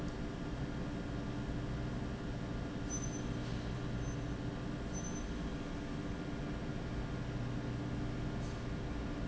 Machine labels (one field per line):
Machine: pump